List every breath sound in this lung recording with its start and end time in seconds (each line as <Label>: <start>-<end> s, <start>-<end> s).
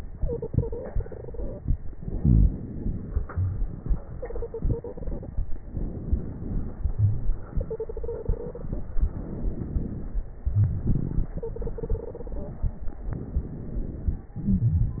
Inhalation: 0.08-1.93 s, 4.13-5.55 s, 7.46-9.00 s, 10.43-13.00 s, 14.34-15.00 s
Exhalation: 1.91-4.12 s, 5.55-7.47 s, 8.99-10.44 s, 13.01-14.33 s
Wheeze: 2.15-2.54 s, 6.91-7.26 s
Stridor: 0.14-1.64 s, 4.12-5.25 s, 7.55-8.68 s, 11.42-12.55 s
Crackles: 8.99-10.44 s, 13.01-14.33 s, 14.34-15.00 s